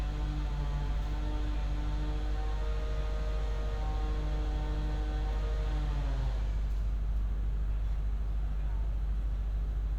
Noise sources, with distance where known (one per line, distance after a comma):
unidentified powered saw